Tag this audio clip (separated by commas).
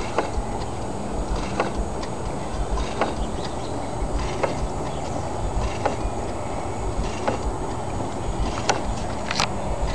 Engine